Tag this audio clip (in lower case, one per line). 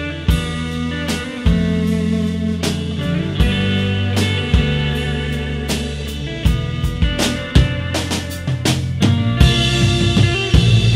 music
drum
inside a small room